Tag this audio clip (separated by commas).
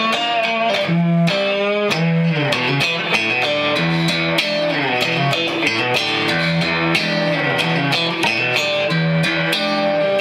Electric guitar, Music